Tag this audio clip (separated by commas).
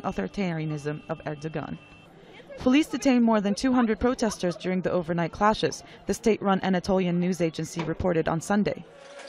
Speech